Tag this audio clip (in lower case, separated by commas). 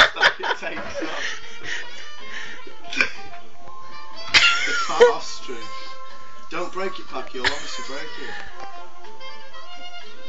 speech, music